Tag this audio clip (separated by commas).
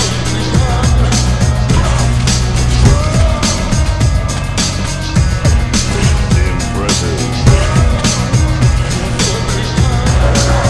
Music